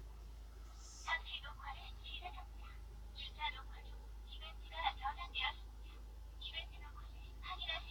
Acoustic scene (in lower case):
car